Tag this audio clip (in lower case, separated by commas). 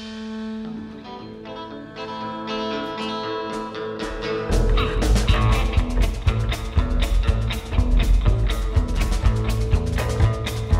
music